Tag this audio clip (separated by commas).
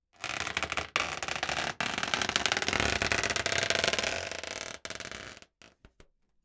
Squeak